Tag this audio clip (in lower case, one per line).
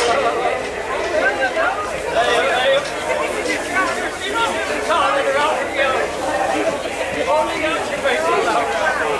speech